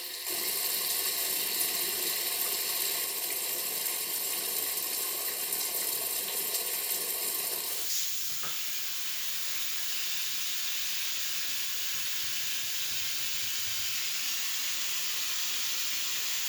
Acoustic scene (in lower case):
restroom